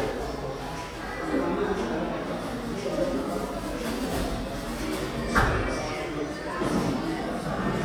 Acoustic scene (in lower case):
cafe